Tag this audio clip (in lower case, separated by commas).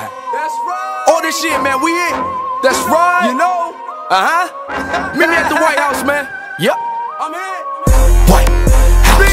middle eastern music, dance music, music